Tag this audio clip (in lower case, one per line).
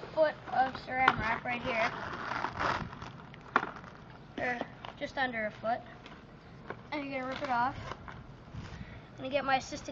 speech